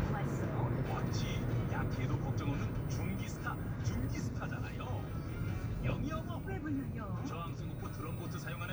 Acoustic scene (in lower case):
car